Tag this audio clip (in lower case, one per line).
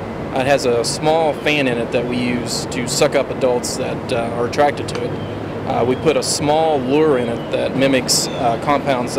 speech